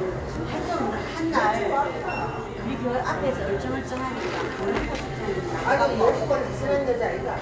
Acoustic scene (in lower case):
cafe